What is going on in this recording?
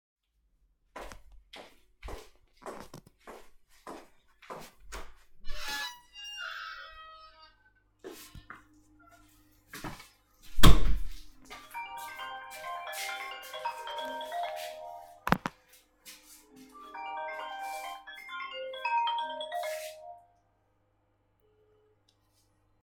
I went downstairs, open the door to the cellar, took the phone out of the pocket and turned it off.